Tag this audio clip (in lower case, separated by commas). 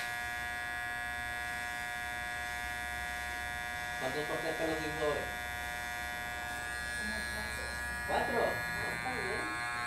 speech